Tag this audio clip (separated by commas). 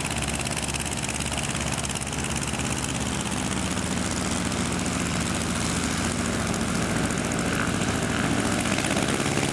Aircraft, Helicopter, Vehicle, airplane